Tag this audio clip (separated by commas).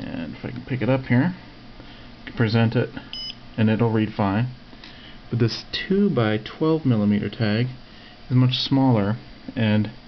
Speech